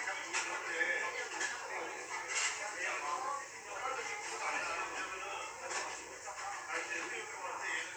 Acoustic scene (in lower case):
restaurant